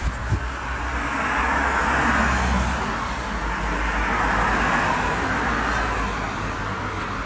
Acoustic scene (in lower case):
street